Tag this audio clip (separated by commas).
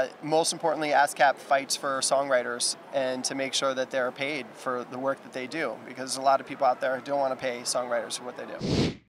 Speech